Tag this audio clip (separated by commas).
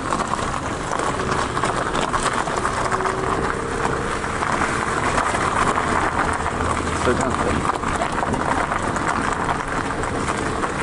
Vehicle, Car, Speech